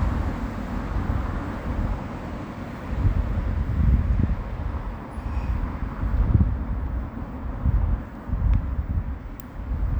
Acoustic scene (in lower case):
residential area